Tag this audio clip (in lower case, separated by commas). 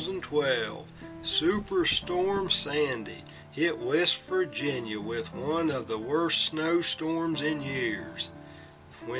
speech, music